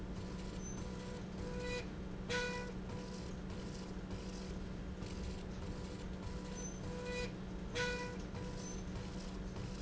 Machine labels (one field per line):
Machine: slide rail